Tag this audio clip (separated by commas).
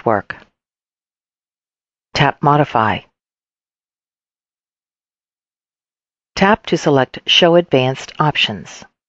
Speech, inside a small room